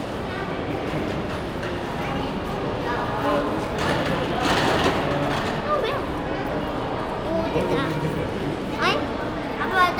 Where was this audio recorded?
in a crowded indoor space